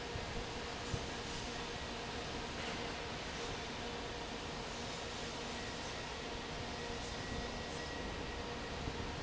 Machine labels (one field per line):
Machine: fan